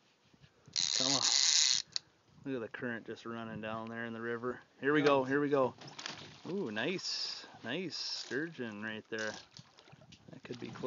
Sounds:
Speech

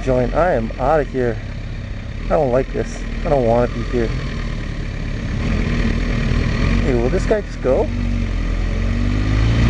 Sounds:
Accelerating, Engine, Vehicle, Medium engine (mid frequency), Idling, Car, Speech

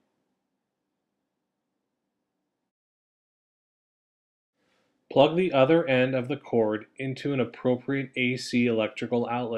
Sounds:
Speech

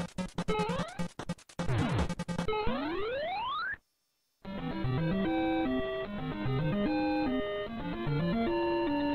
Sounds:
Music

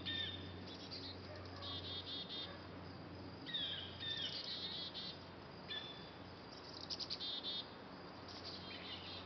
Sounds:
tweet, Bird vocalization, Bird

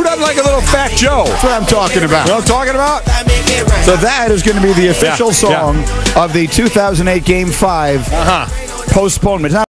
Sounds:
Speech, Music

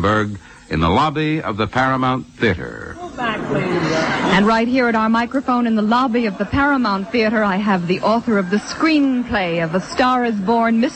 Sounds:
Speech

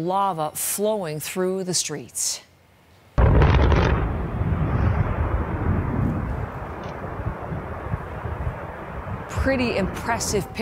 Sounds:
volcano explosion

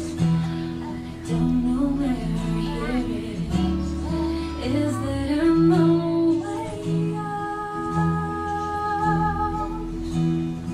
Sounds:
Music

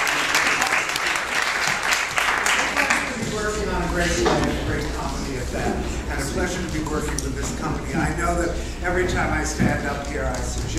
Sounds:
Speech

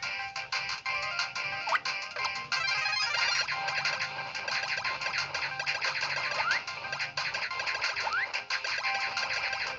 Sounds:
Music

